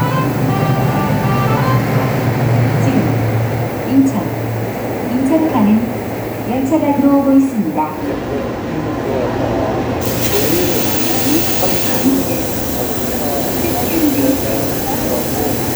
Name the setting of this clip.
subway station